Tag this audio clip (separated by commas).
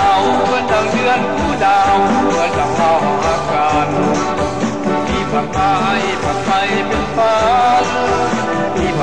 Music